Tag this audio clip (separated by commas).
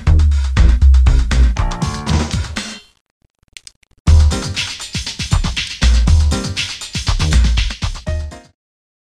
Music